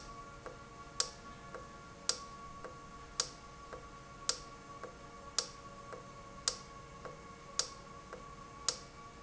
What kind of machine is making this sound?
valve